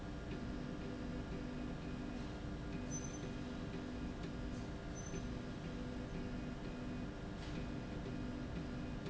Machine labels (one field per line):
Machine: slide rail